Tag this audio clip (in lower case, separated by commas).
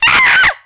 human voice, screaming